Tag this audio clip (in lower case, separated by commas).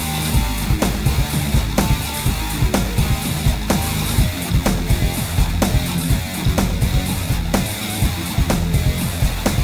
music